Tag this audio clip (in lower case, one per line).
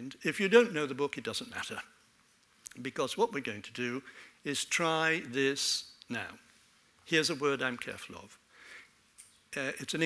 speech